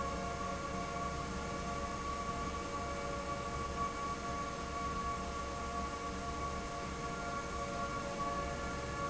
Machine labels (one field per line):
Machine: fan